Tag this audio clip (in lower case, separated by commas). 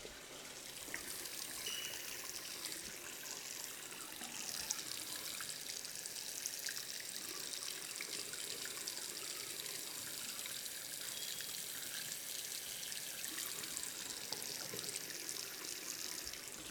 home sounds, sink (filling or washing)